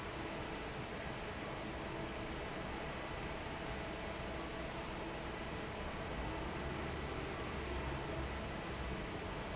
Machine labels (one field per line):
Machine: fan